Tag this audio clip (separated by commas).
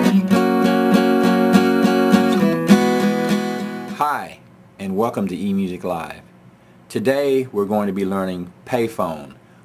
Acoustic guitar, Musical instrument, Plucked string instrument, Music, Guitar, Speech